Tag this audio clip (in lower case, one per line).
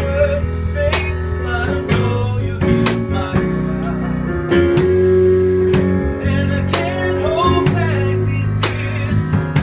music